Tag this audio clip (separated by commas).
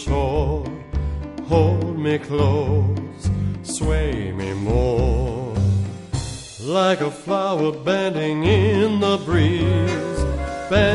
Music, Male singing